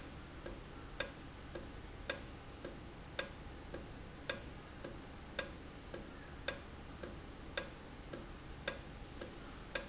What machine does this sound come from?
valve